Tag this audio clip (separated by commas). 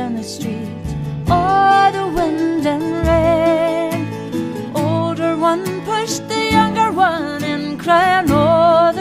Music